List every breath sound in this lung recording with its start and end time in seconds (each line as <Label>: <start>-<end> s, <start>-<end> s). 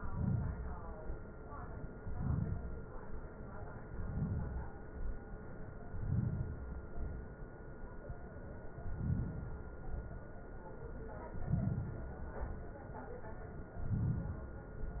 Inhalation: 0.00-0.89 s, 1.99-2.87 s, 3.88-4.80 s, 5.79-6.75 s, 8.64-9.78 s, 11.26-12.40 s, 13.72-14.81 s
Exhalation: 0.89-1.91 s, 2.86-3.87 s, 4.81-5.79 s, 6.78-8.03 s, 9.80-11.14 s, 12.39-13.71 s, 14.81-15.00 s